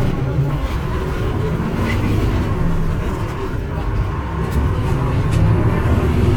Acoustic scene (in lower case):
bus